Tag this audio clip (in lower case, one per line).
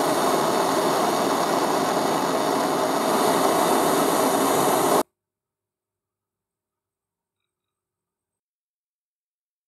blowtorch igniting